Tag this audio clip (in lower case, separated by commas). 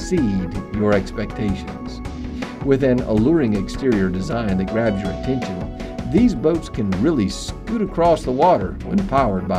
music, speech